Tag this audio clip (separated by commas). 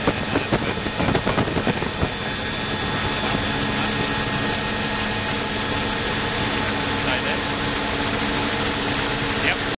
Vehicle, Helicopter, Speech